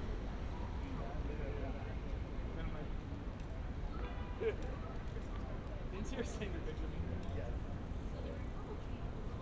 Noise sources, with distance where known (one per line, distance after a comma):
person or small group talking, near